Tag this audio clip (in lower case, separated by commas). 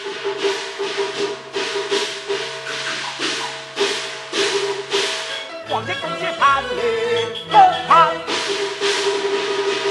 ping, music